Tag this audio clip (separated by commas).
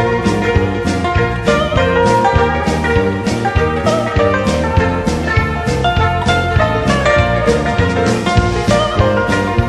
Music